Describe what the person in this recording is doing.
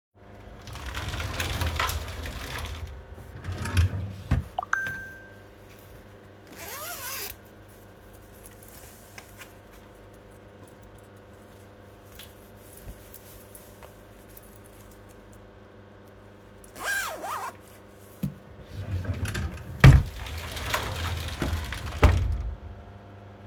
I open the sliding door of my wardrobe and open a drawer while a phone notification arrives. I take out a jacket, open the zipper, put it on and close it again. Then I close the drawer and the sliding door again. Aircon noise audible in background.